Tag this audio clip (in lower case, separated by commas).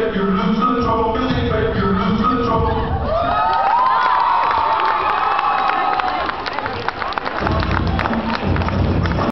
cheering, crowd